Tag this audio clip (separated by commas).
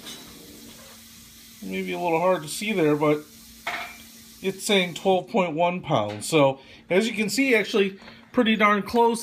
Speech, Frying (food)